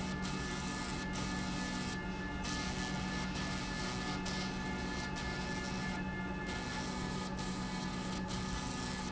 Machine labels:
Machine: slide rail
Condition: abnormal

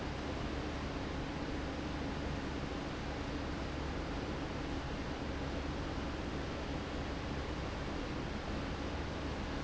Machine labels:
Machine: fan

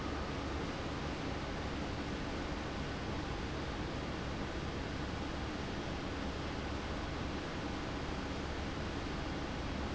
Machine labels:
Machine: fan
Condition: abnormal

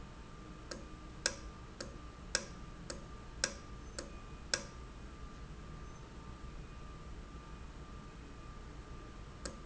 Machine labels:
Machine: valve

